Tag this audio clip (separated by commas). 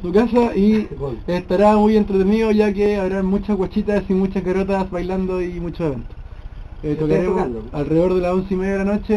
Speech